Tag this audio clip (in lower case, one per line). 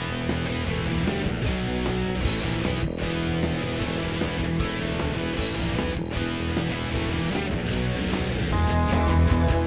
music